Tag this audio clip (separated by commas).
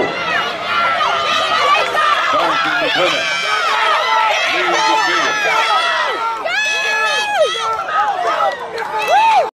Run, Speech, outside, urban or man-made